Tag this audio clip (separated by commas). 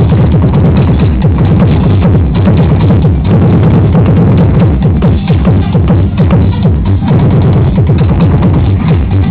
Sound effect